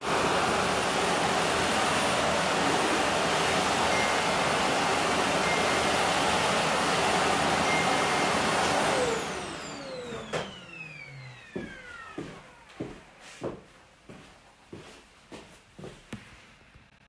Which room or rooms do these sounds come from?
living room